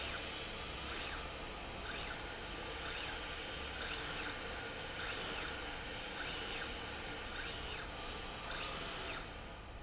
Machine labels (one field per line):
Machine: slide rail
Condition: normal